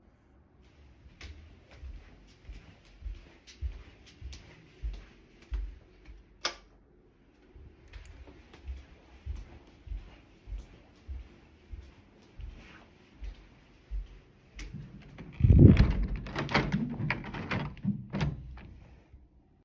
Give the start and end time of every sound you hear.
1.1s-6.3s: footsteps
6.3s-6.7s: light switch
7.8s-15.3s: footsteps
15.3s-18.7s: window

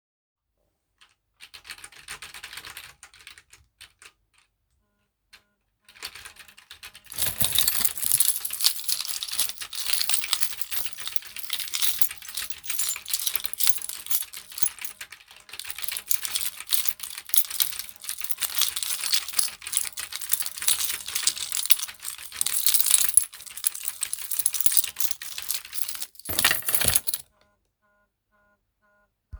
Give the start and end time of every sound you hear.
0.9s-1.1s: keyboard typing
1.3s-4.3s: keyboard typing
4.9s-29.4s: phone ringing
5.3s-5.5s: keyboard typing
5.5s-25.8s: keyboard typing
7.1s-27.3s: keys

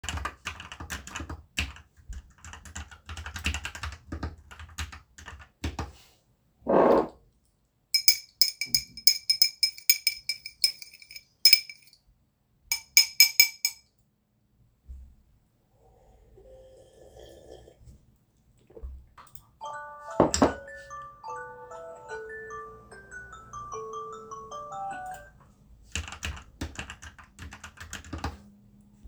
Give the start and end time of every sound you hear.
0.0s-6.0s: keyboard typing
6.5s-14.0s: cutlery and dishes
16.5s-17.2s: phone ringing
19.5s-25.4s: phone ringing
19.6s-25.3s: bell ringing
25.8s-28.8s: keyboard typing

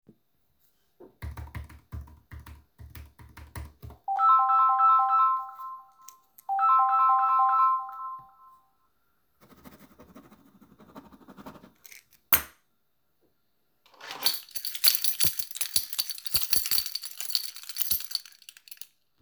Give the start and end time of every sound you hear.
1.0s-4.1s: keyboard typing
4.0s-8.2s: phone ringing
14.0s-19.0s: keys

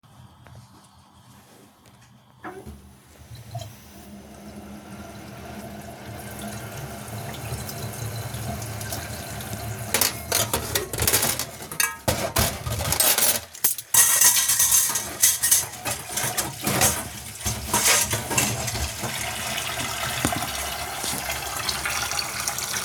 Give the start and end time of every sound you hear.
3.4s-22.8s: running water
9.8s-19.6s: cutlery and dishes

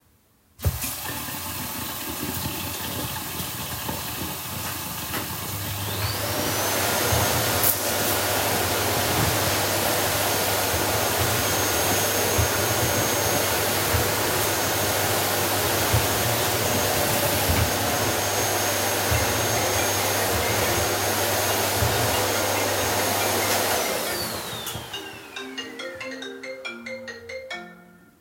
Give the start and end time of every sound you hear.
0.6s-17.9s: running water
5.7s-25.0s: vacuum cleaner
19.0s-28.0s: phone ringing

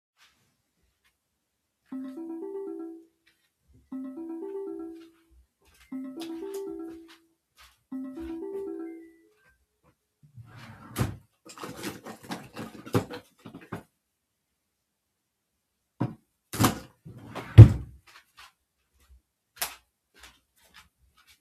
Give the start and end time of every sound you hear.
1.8s-9.4s: phone ringing
5.1s-9.2s: footsteps
10.3s-11.3s: wardrobe or drawer
17.0s-18.0s: wardrobe or drawer
19.6s-19.8s: light switch
19.9s-21.4s: footsteps

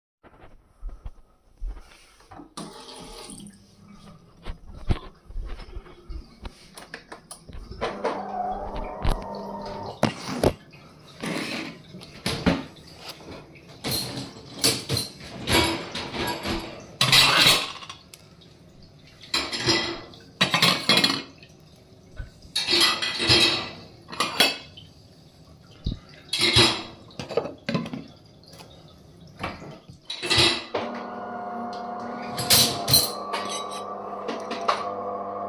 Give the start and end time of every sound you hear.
2.6s-35.5s: running water
7.2s-10.7s: coffee machine
11.2s-18.2s: cutlery and dishes
19.2s-21.4s: cutlery and dishes
22.4s-24.8s: cutlery and dishes
25.8s-28.2s: cutlery and dishes
29.9s-31.1s: cutlery and dishes
30.7s-35.5s: coffee machine

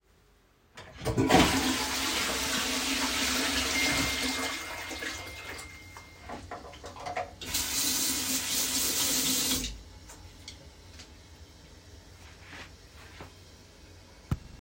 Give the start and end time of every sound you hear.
1.2s-5.7s: toilet flushing
3.8s-5.6s: phone ringing
7.4s-10.0s: running water

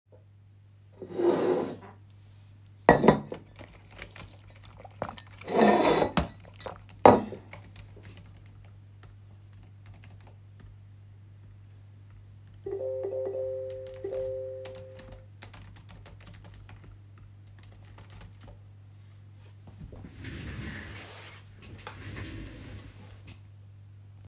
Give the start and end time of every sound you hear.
1.0s-1.8s: cutlery and dishes
2.8s-3.4s: cutlery and dishes
3.3s-9.4s: keyboard typing
5.4s-6.3s: cutlery and dishes
7.0s-7.5s: cutlery and dishes
9.5s-10.8s: keyboard typing
12.6s-15.0s: phone ringing
13.8s-18.8s: keyboard typing

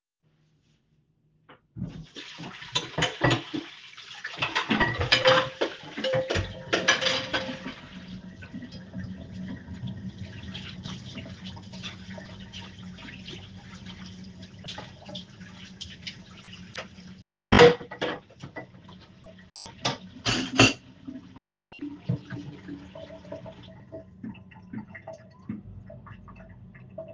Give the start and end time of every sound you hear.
1.3s-26.2s: running water
2.7s-8.0s: cutlery and dishes
17.1s-21.3s: cutlery and dishes

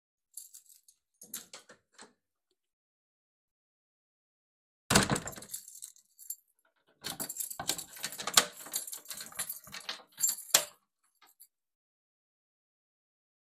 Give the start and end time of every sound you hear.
0.3s-2.1s: keys
4.9s-5.6s: door
4.9s-10.8s: keys

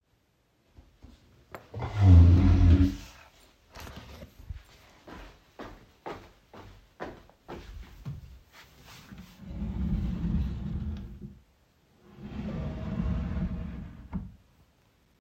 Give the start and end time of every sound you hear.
4.9s-8.5s: footsteps
9.3s-11.9s: wardrobe or drawer
12.2s-14.4s: wardrobe or drawer

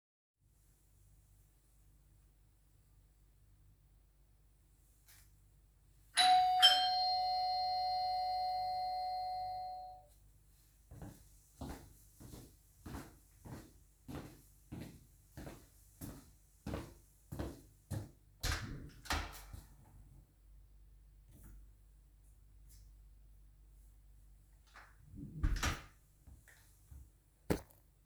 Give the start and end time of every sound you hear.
6.1s-10.2s: bell ringing
10.8s-18.2s: footsteps
18.4s-19.7s: door
25.2s-25.9s: door

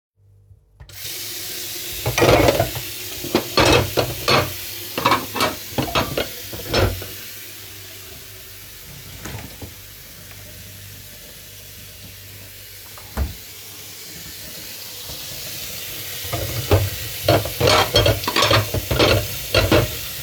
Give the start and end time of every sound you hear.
0.7s-20.2s: running water
1.9s-7.3s: cutlery and dishes
9.2s-16.6s: wardrobe or drawer
16.4s-20.2s: cutlery and dishes

